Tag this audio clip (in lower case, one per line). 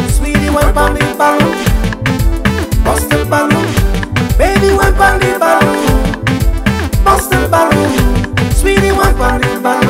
music